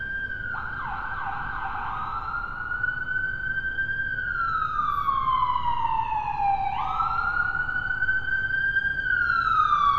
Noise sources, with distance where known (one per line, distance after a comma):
siren, near